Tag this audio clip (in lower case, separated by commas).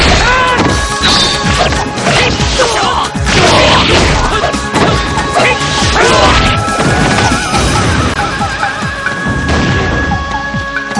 music, speech, crash